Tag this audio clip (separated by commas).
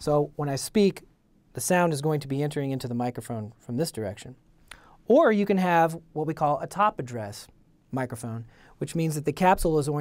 Speech